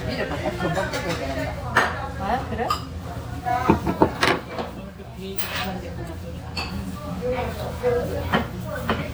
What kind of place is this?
restaurant